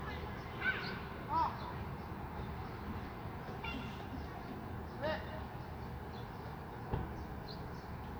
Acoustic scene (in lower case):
residential area